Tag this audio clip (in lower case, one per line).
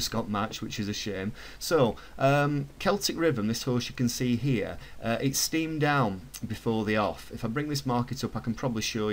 speech